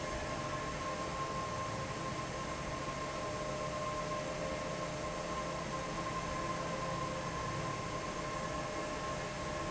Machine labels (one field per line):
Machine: fan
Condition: normal